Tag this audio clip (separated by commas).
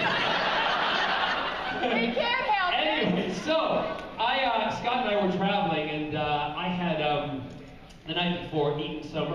Speech, inside a large room or hall